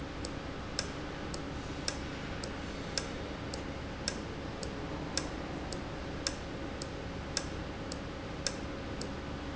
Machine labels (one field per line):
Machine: valve